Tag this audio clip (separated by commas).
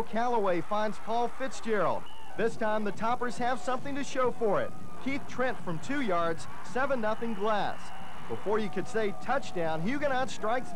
Speech